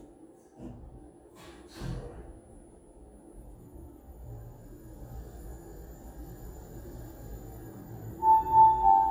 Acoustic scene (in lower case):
elevator